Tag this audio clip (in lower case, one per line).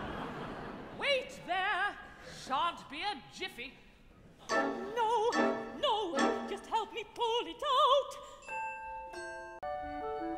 music
speech